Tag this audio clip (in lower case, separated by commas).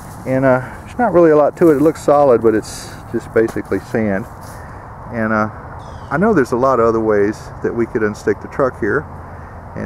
speech